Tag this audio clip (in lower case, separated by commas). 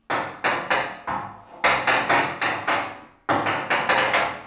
hammer, tools